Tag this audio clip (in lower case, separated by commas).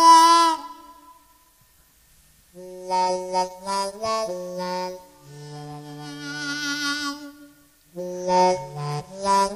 musical instrument, music, harmonica